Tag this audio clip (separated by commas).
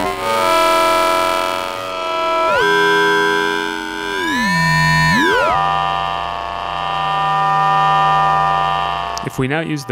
Synthesizer, Speech, inside a small room